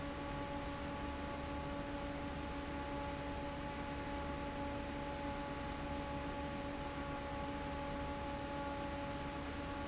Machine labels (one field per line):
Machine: fan